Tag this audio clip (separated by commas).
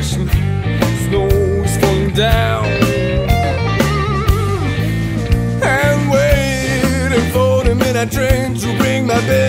Blues, Music